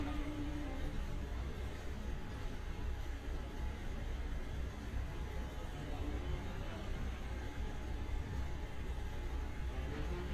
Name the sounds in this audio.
music from a fixed source